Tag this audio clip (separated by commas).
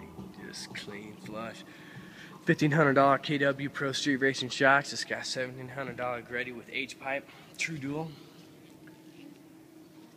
Speech